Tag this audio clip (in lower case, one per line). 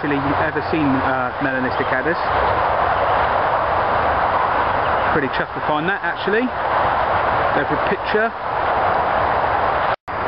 speech
outside, rural or natural